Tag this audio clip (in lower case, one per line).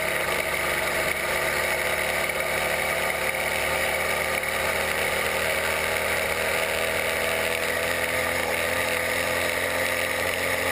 vehicle